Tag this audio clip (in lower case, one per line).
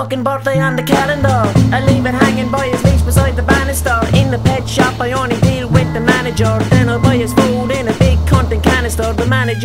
music